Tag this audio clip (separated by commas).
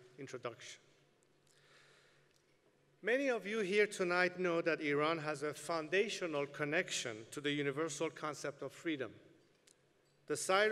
Narration, Male speech, Speech